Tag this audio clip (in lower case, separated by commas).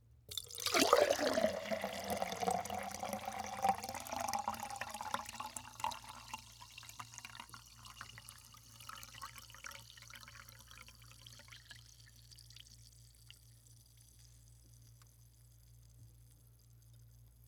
liquid